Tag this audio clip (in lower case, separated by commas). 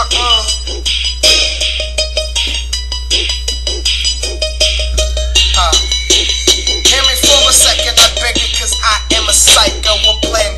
music